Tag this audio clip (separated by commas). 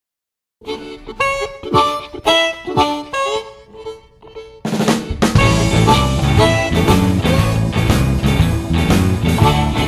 Harmonica, Wind instrument